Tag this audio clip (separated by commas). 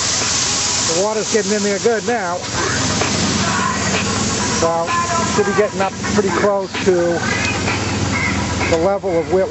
Music, Speech